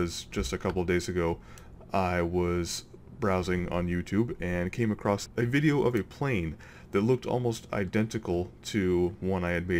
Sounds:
Speech

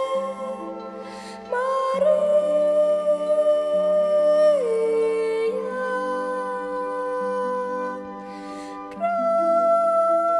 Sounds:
Orchestra, Music, Singing

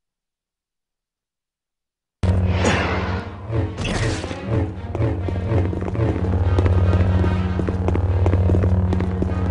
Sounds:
Music, Zipper (clothing)

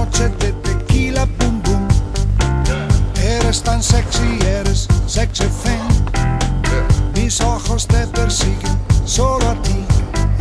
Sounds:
Funk, Music

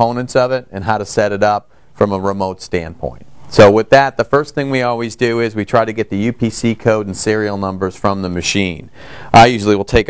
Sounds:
Speech

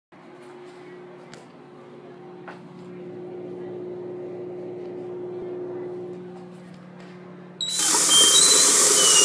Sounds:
Fill (with liquid), Silence, inside a small room, Pump (liquid)

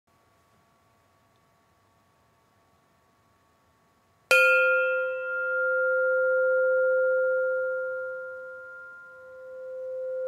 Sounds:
Tubular bells

